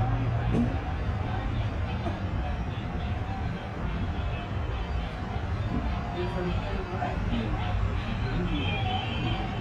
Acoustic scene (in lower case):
residential area